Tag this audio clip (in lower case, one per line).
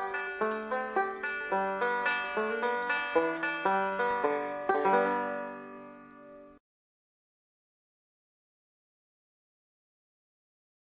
playing banjo